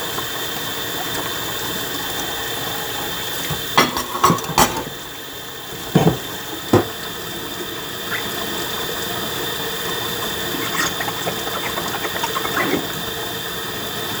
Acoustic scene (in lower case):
kitchen